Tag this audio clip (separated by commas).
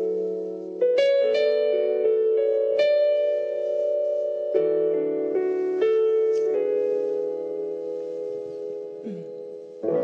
Music